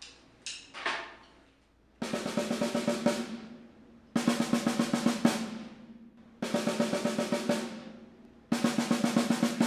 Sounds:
playing snare drum

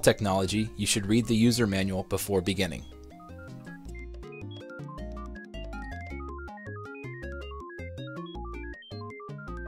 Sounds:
Speech, Music

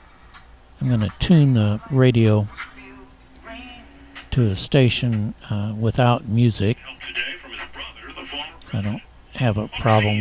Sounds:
Speech

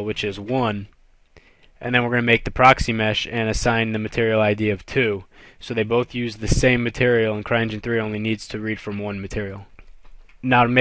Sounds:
Speech

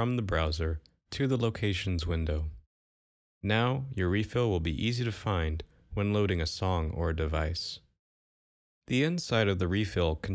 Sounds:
Speech

